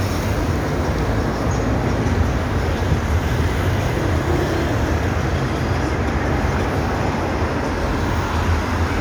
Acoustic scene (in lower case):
street